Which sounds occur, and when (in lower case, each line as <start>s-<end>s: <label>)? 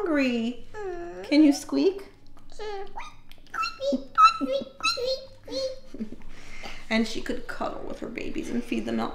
0.0s-0.6s: woman speaking
0.0s-9.1s: music
0.7s-1.5s: human voice
1.3s-2.0s: woman speaking
2.1s-2.5s: human sounds
2.8s-3.0s: clicking
2.9s-3.2s: human voice
3.3s-3.5s: clicking
3.5s-4.1s: human voice
3.9s-5.0s: chortle
4.2s-4.7s: human voice
4.8s-5.4s: human voice
5.4s-5.7s: breathing
5.5s-6.2s: chortle
5.5s-5.8s: human voice
6.3s-6.9s: breathing
6.6s-6.7s: generic impact sounds
6.9s-9.1s: woman speaking
8.4s-9.0s: breathing